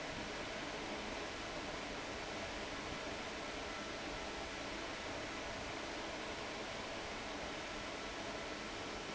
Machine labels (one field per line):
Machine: fan